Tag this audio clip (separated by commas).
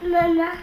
Child speech, Human voice, Speech